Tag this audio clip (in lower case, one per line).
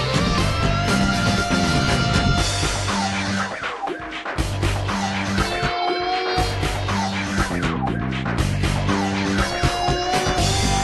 music
soundtrack music